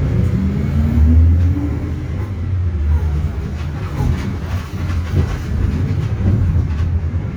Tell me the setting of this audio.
bus